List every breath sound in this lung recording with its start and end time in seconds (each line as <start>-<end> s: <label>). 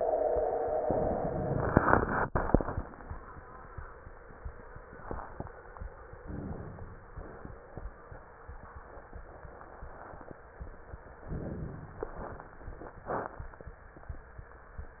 6.24-7.03 s: inhalation
11.30-12.10 s: inhalation
11.30-12.10 s: crackles